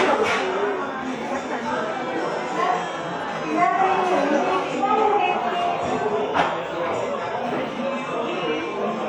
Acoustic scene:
cafe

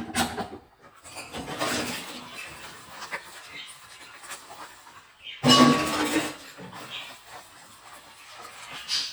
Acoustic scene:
kitchen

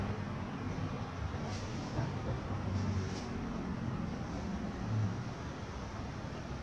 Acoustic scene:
residential area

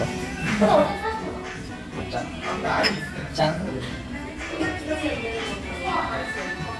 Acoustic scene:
restaurant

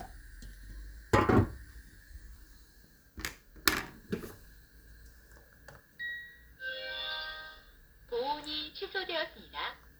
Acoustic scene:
kitchen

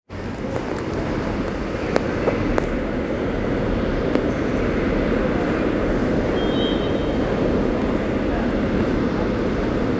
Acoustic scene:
subway station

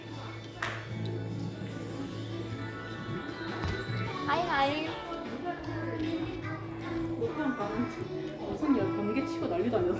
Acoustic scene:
crowded indoor space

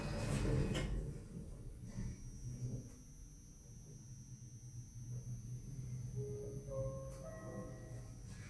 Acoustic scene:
elevator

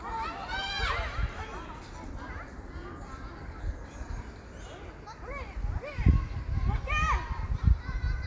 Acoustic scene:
park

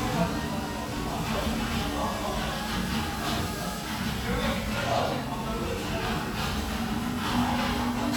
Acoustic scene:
restaurant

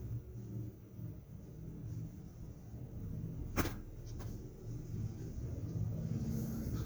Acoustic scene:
elevator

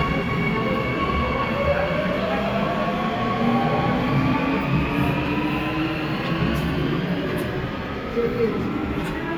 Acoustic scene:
subway station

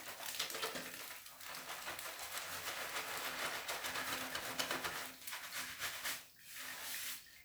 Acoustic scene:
restroom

